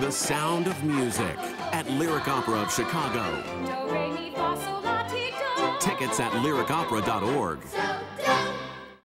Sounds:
Speech, Music

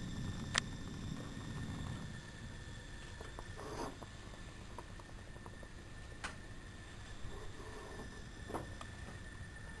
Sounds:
Engine

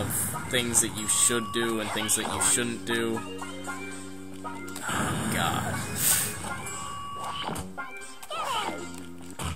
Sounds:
Speech, Music

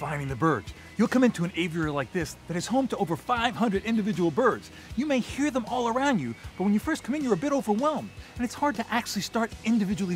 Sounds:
Music, Speech

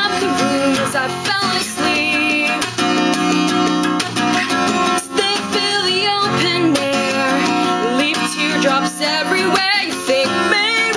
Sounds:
Music

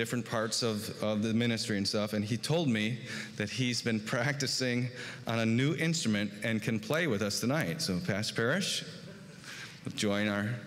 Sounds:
Speech

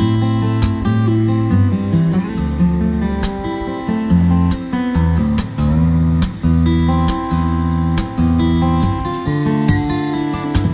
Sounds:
Acoustic guitar

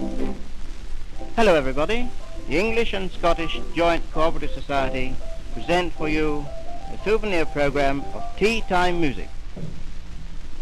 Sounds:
Music, Speech

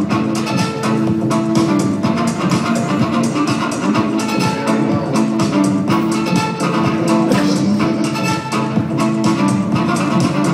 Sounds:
Violin, Music, Musical instrument

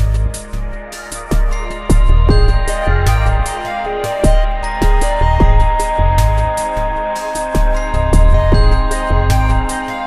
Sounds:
Music

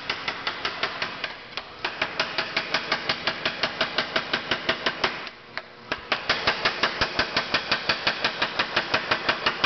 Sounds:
Hammer

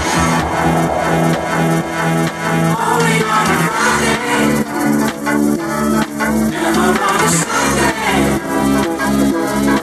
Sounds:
Music

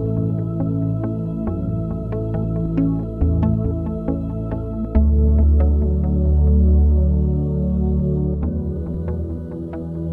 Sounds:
Music

